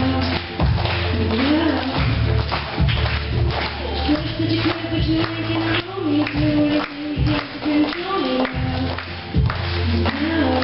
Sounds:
Music, Singing

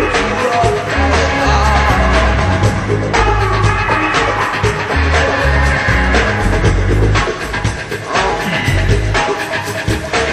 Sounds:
Singing, Music

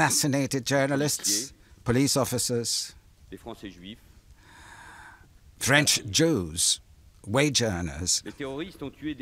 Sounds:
Male speech, Speech

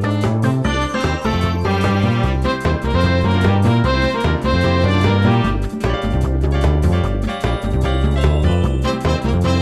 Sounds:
Music

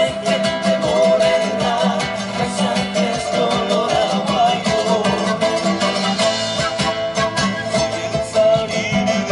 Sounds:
Traditional music, Music

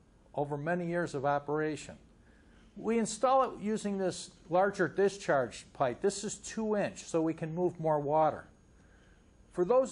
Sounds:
Speech

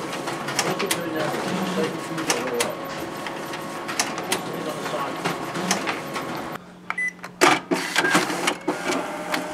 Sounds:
Speech, Printer, printer printing

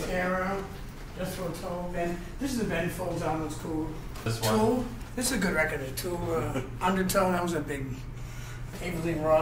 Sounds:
Speech

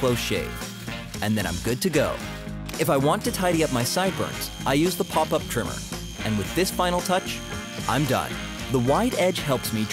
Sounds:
electric razor shaving

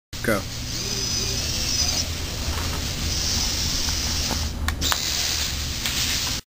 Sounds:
Speech

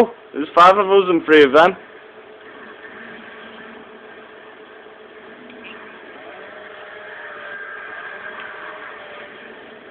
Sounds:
Speech

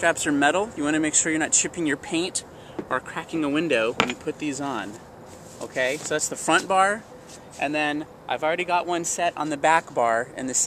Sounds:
Speech

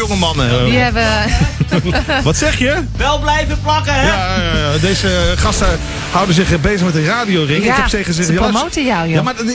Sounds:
Speech, Music, Radio

